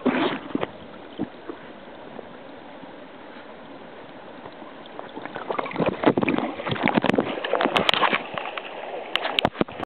Sounds of a small stream with microphone being submerged